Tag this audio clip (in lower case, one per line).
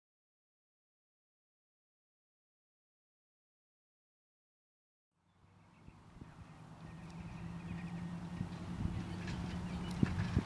animal